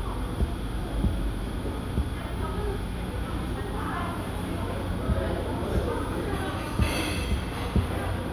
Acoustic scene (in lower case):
cafe